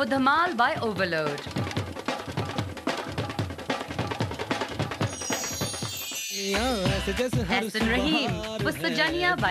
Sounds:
Speech, Music

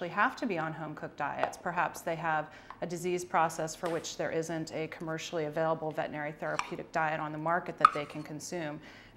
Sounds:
Speech

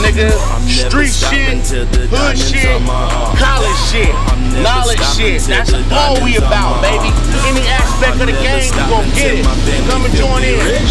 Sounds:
Music, Speech

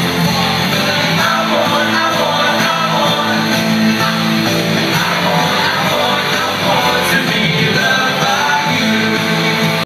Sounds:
Music

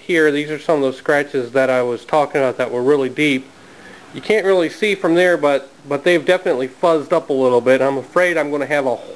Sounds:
Speech

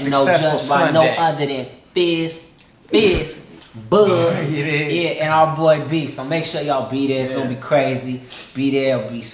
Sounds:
Speech

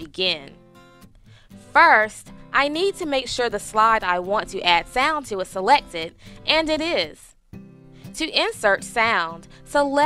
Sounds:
Speech, Music

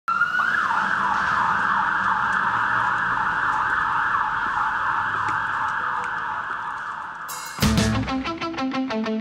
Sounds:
Emergency vehicle, outside, urban or man-made, Music, Fire engine

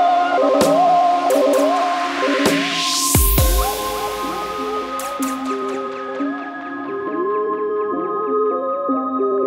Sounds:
Electronic music, Dubstep, Music

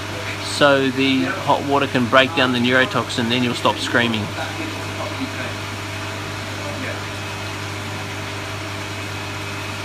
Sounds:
Speech

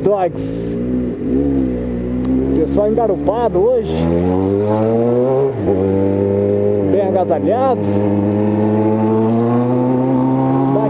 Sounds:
Speech

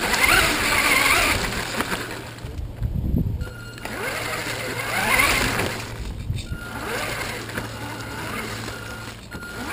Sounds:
Car

